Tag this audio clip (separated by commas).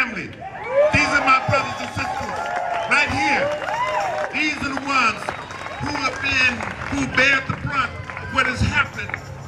Speech, Male speech, monologue